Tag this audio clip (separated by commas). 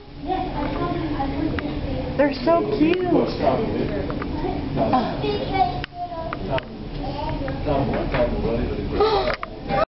Speech